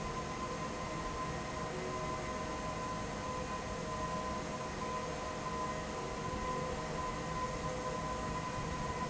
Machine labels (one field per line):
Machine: fan